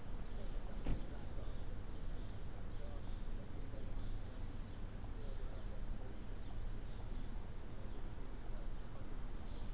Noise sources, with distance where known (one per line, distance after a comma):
background noise